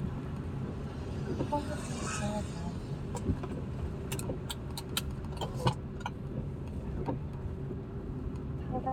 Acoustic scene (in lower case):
car